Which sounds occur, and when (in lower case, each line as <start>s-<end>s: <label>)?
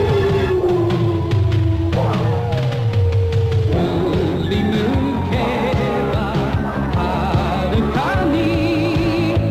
0.0s-3.7s: howl
0.0s-9.5s: music
3.6s-6.5s: man speaking
5.3s-6.4s: howl
6.9s-9.3s: man speaking
8.1s-9.5s: howl